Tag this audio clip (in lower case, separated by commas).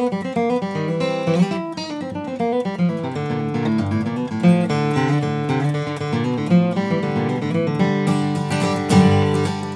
guitar, strum, bluegrass, plucked string instrument, music, musical instrument